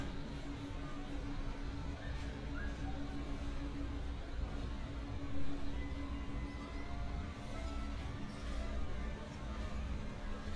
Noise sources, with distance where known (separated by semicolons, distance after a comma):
music from a fixed source